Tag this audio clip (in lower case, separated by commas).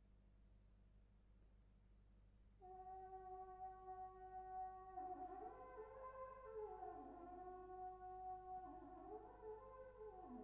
french horn, brass instrument